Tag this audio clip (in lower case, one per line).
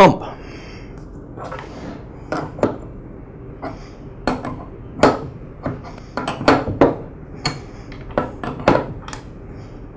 speech
inside a small room